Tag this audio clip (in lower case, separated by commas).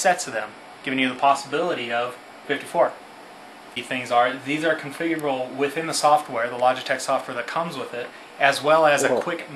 speech